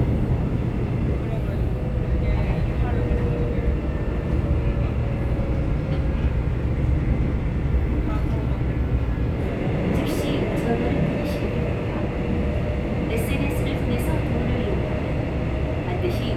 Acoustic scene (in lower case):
subway train